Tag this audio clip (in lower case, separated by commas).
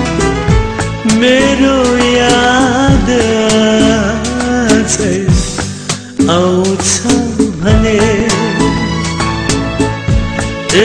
music